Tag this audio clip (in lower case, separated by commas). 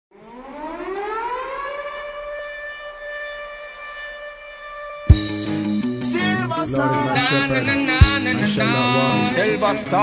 civil defense siren, music, singing